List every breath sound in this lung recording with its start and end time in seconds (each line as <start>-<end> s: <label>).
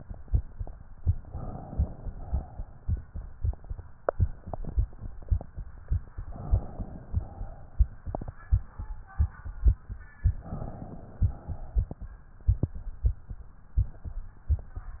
1.20-2.08 s: inhalation
2.08-2.96 s: exhalation
6.22-7.11 s: inhalation
7.11-7.89 s: exhalation
10.33-11.21 s: inhalation
11.21-12.10 s: exhalation